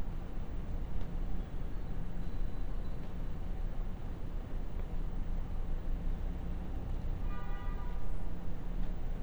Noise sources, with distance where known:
car horn

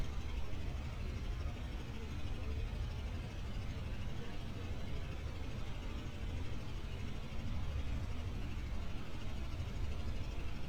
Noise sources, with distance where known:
unidentified impact machinery
person or small group talking, far

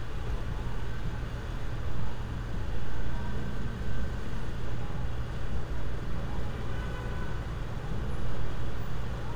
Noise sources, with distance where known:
engine of unclear size
car horn, far

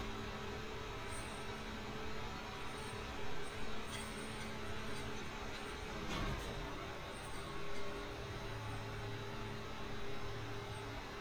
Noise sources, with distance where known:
background noise

